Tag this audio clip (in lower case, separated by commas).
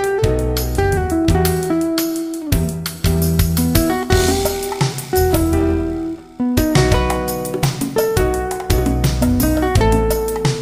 middle eastern music, musical instrument, rhythm and blues, plucked string instrument, music, bass guitar, guitar, electric guitar, strum